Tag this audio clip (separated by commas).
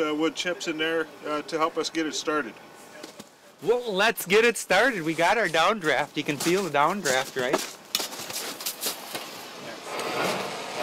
Speech